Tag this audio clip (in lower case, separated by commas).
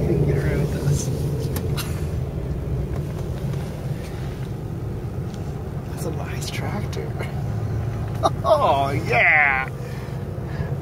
speech